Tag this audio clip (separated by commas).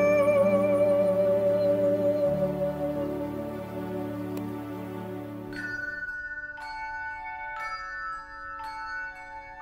Mallet percussion, xylophone, Glockenspiel